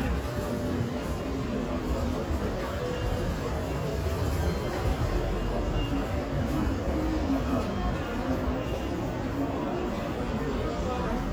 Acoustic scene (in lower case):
crowded indoor space